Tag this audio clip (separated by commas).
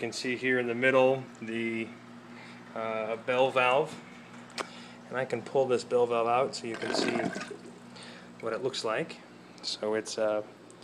Speech